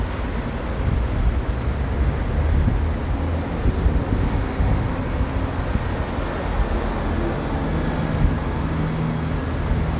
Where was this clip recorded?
on a street